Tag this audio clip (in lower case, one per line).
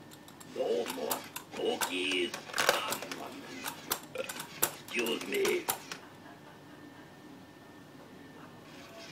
speech